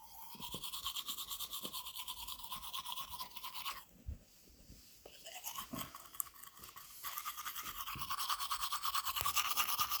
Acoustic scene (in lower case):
restroom